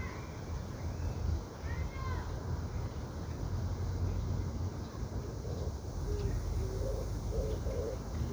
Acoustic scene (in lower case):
park